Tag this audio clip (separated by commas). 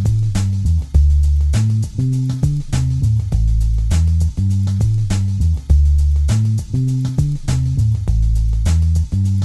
Music